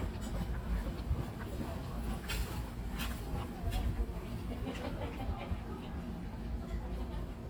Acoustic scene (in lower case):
residential area